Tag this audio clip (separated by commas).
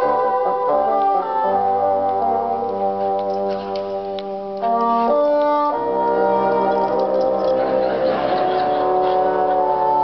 playing bassoon